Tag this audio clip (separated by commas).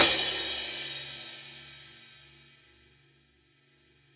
Music, Crash cymbal, Percussion, Cymbal, Musical instrument